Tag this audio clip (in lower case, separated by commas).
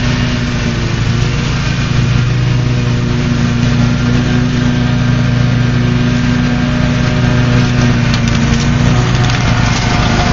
lawn mower